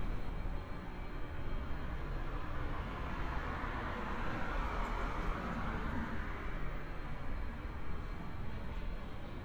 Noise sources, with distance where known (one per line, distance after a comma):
medium-sounding engine, near